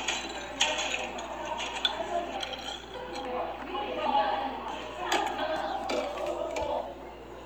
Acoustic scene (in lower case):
cafe